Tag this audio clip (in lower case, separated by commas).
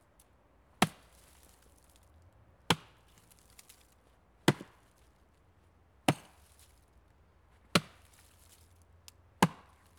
wood